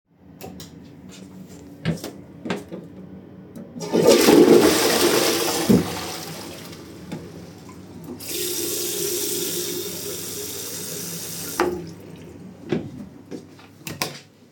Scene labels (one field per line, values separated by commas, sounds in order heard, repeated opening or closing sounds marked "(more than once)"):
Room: bathroom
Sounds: light switch, footsteps, toilet flushing, running water